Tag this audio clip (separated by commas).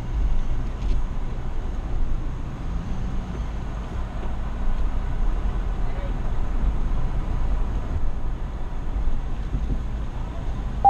Vehicle, Car, Speech